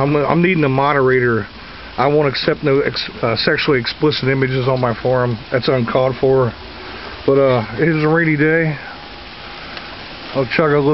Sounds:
Speech, Rain on surface

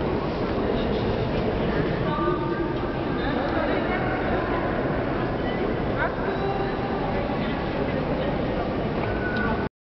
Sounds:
Speech

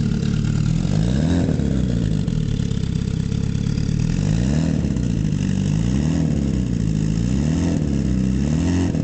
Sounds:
Engine, Idling, Accelerating, Engine starting, Vehicle, Medium engine (mid frequency)

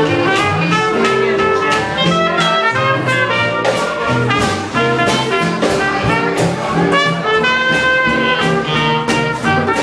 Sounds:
Swing music, Music, Jazz

